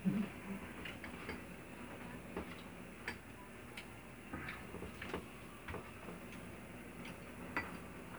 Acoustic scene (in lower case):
restaurant